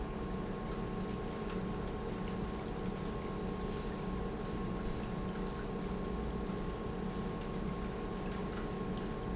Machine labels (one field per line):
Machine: pump